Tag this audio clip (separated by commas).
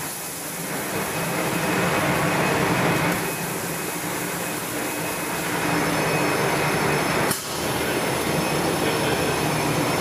popping popcorn